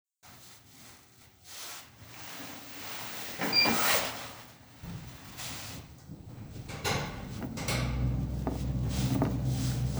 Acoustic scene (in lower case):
elevator